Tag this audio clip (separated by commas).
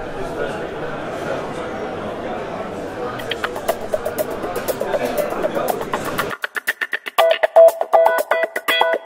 Music, Speech